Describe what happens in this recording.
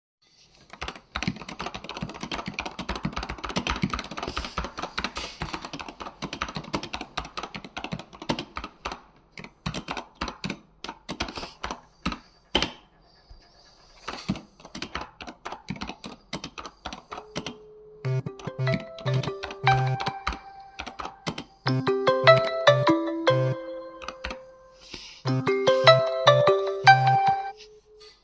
I was typing on the keyboard as the phone rang